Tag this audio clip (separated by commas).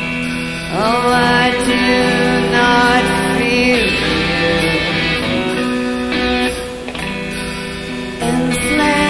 Music